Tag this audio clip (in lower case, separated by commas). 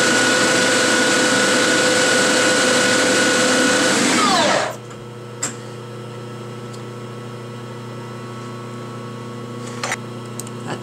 lathe spinning